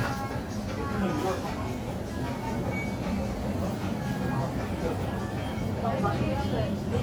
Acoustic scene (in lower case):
crowded indoor space